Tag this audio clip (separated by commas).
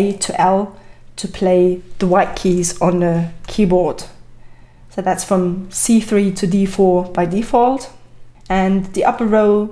Speech